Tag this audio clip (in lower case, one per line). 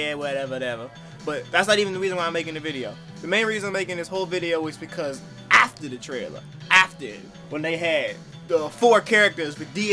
speech
music